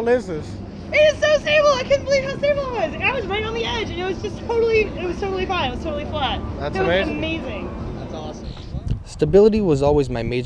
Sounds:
Vehicle, Speech

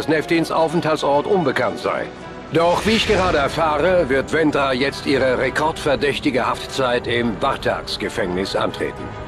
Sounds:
Music, Speech

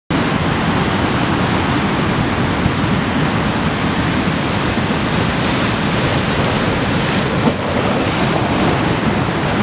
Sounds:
Ocean, ocean burbling

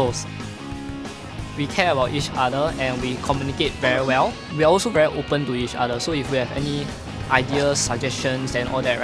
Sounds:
Music, Speech

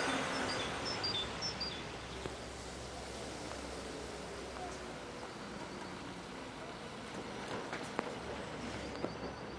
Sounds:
Truck, Air brake, Vehicle

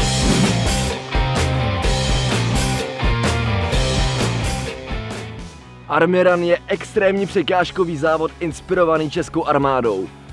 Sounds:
Speech, Music

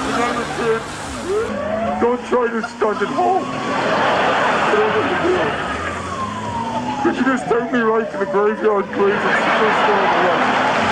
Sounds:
Police car (siren)

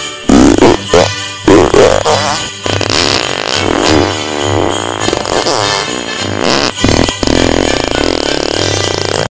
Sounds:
Jingle bell

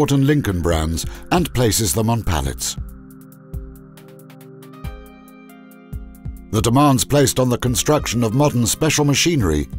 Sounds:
Speech, Music

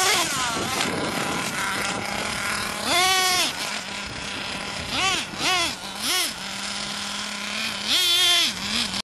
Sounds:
Car

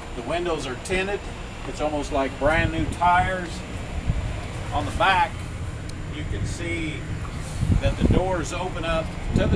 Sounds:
Speech

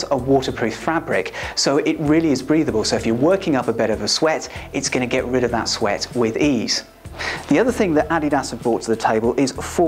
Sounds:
Speech

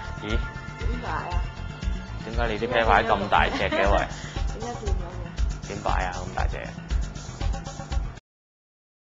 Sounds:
Music, Speech

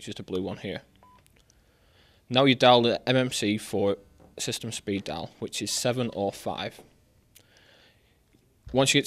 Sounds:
Speech

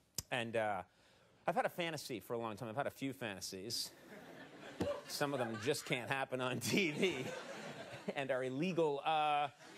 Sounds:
Speech

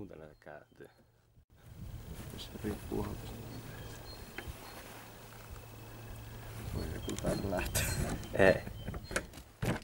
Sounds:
Speech

